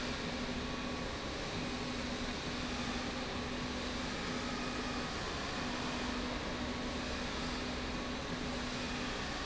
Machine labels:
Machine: slide rail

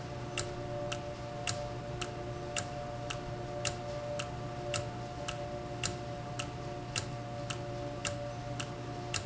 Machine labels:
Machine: valve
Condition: normal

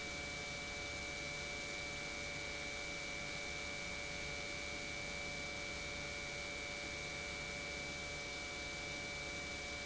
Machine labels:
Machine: pump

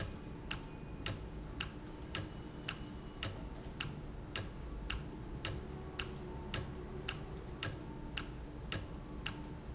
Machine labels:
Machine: valve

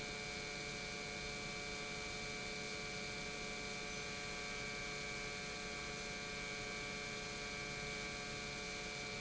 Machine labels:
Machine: pump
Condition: normal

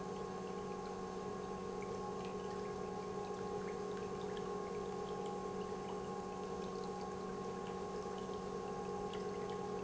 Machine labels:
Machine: pump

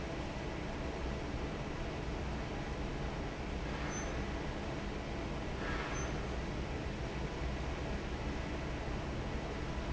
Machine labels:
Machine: fan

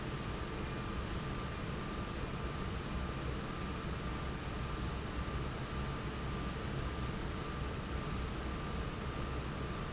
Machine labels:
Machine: fan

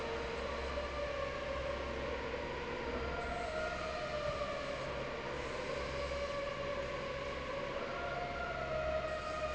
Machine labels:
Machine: fan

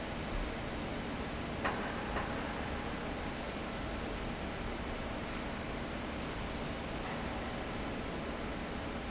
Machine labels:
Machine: fan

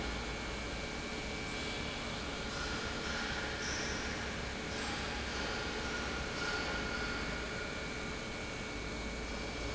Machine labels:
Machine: pump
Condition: normal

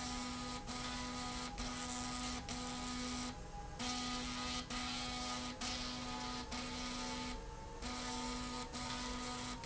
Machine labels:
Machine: slide rail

